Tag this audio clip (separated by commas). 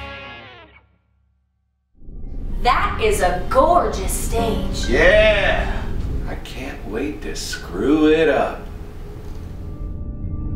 Speech